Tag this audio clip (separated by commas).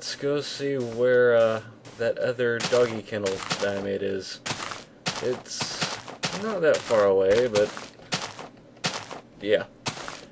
Speech